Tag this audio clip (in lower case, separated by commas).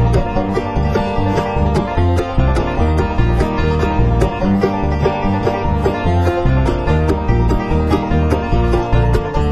music